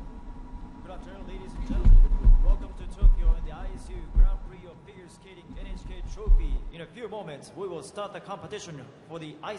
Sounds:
speech

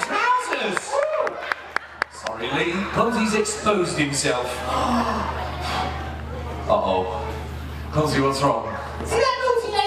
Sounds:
speech

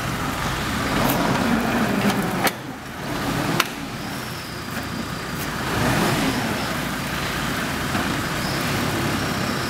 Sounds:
truck
vehicle

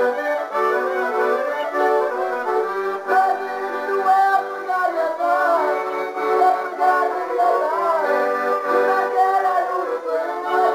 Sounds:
accordion
musical instrument
music

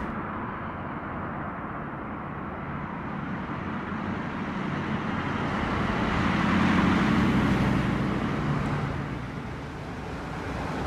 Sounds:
bus
vehicle
driving buses

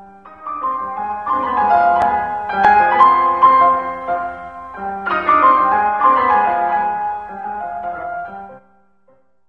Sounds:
keyboard (musical)

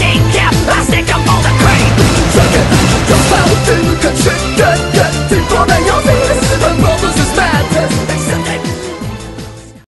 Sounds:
music

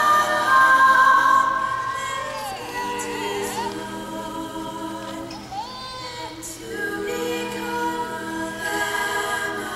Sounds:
music
female singing
choir

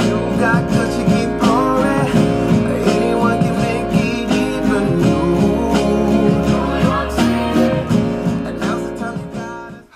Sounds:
speech
musical instrument
music
acoustic guitar

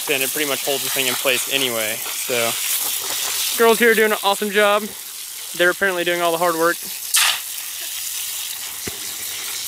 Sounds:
speech

